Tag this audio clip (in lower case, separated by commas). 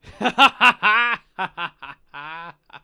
human voice, laughter